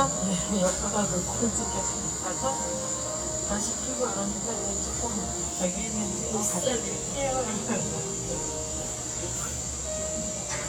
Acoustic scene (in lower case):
cafe